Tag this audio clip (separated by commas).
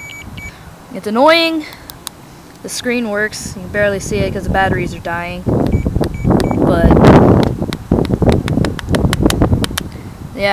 Speech